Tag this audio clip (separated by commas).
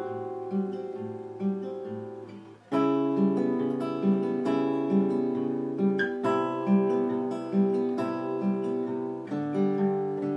Guitar, Music, Acoustic guitar, playing acoustic guitar, Strum, Plucked string instrument, Musical instrument